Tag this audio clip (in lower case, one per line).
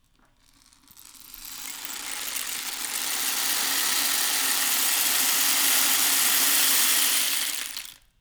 percussion
rattle (instrument)
musical instrument
music